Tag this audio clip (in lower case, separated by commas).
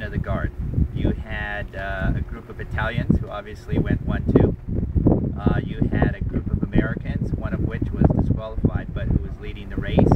speech